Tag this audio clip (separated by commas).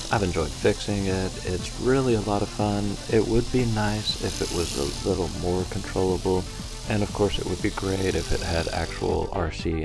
bird wings flapping